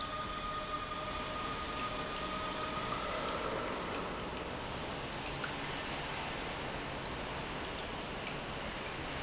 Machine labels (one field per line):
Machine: pump